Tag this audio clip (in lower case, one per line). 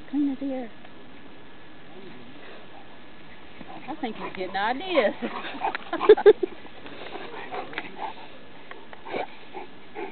speech